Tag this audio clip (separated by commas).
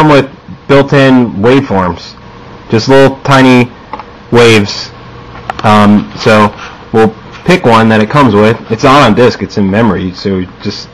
Speech, Rustle